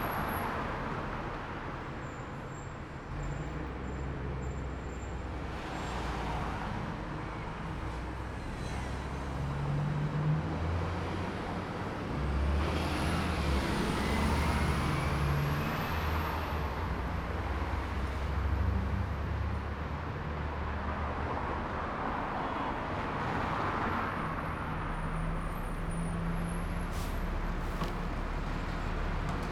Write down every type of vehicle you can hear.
car, bus